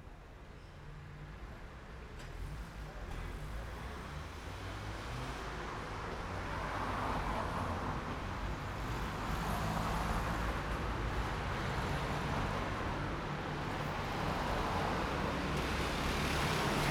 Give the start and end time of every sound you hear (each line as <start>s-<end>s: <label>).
0.0s-2.9s: car engine idling
0.0s-16.9s: car
2.9s-7.5s: car engine accelerating
4.8s-16.9s: car wheels rolling
8.4s-11.1s: car engine accelerating
16.0s-16.9s: motorcycle
16.0s-16.9s: motorcycle engine accelerating